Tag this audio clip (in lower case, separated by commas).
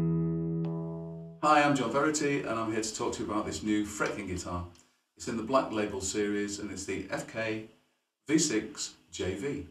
strum, speech, guitar, musical instrument, acoustic guitar, plucked string instrument, music